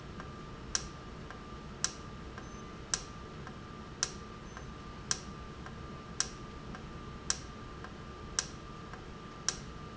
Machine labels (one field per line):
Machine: valve